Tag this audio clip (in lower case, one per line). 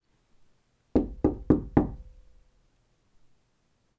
domestic sounds
knock
door